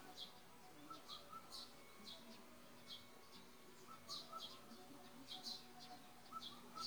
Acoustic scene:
park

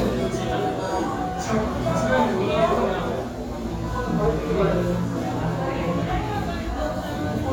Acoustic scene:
restaurant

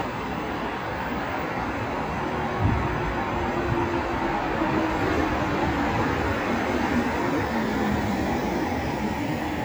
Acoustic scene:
street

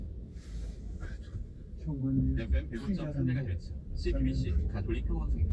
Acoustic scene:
car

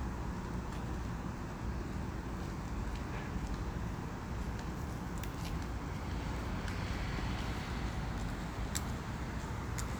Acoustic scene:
residential area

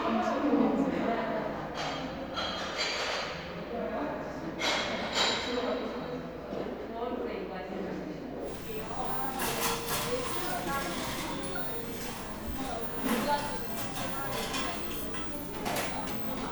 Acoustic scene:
cafe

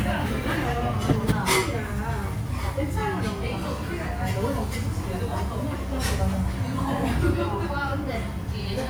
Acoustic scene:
restaurant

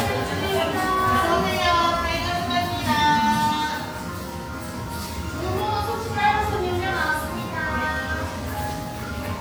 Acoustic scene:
cafe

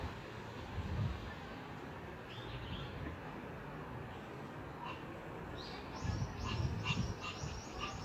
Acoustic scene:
park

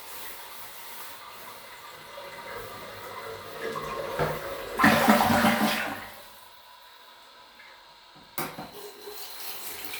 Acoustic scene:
restroom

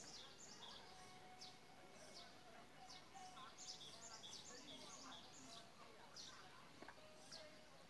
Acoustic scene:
park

